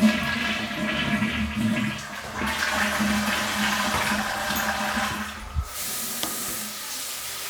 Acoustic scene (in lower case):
restroom